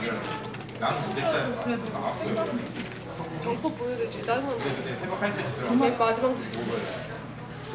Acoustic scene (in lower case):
crowded indoor space